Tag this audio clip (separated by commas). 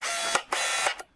Camera, Mechanisms